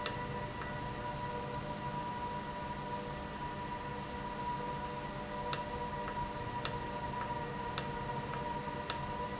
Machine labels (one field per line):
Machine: valve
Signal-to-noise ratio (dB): -6 dB